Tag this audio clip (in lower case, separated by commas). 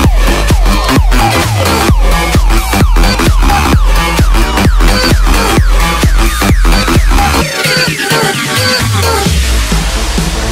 electronic dance music, house music, music